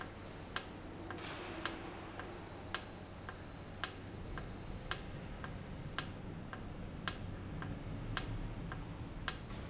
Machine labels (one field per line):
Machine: valve